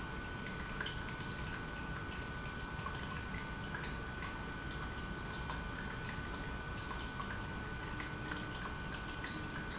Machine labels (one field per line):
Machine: pump